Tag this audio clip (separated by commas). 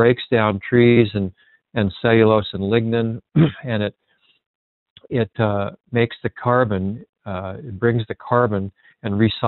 Speech